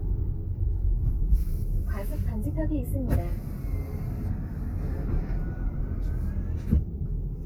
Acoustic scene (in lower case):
car